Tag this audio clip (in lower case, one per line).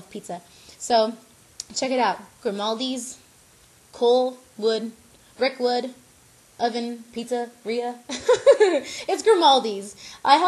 inside a small room
speech